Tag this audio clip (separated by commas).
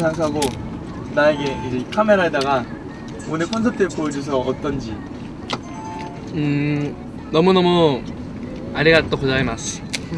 Music, Speech